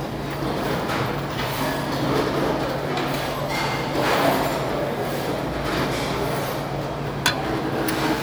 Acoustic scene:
restaurant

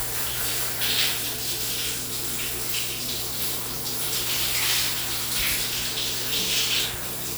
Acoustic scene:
restroom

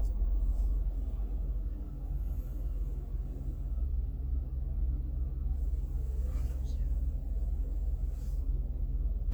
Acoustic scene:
car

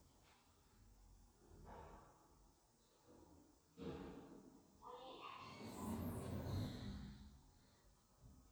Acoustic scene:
elevator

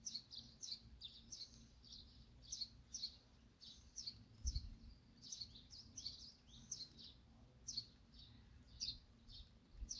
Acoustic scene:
park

